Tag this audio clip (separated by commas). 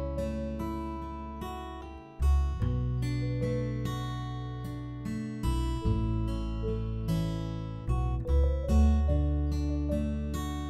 Music